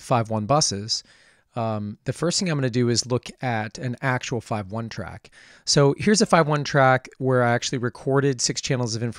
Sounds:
speech

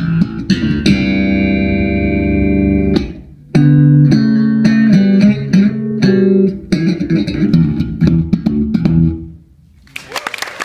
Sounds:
guitar, music, playing bass guitar, bass guitar, plucked string instrument, musical instrument

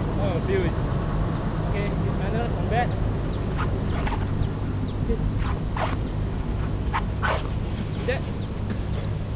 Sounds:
speech

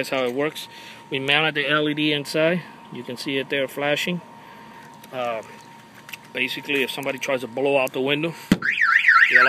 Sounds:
car alarm

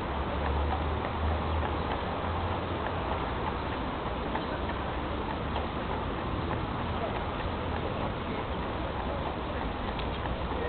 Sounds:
clip-clop

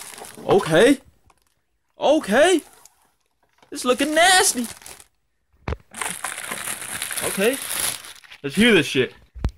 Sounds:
speech, crackle

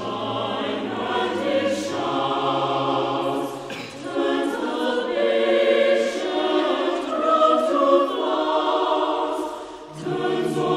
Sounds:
music, choir, a capella

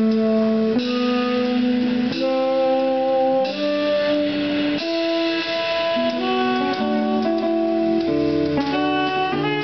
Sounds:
music, independent music

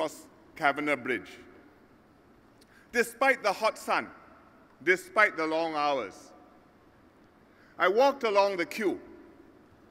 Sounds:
narration, man speaking, speech

